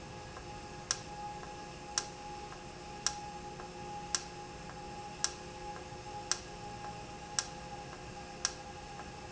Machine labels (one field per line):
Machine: valve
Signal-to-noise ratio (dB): 0 dB